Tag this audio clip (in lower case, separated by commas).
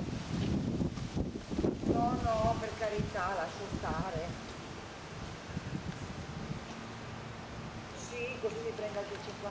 speech